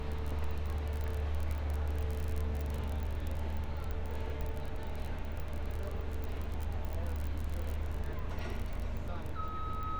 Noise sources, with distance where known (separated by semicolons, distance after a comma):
reverse beeper, near